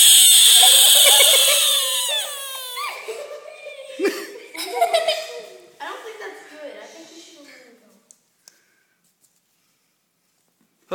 A squealing frog and children laughter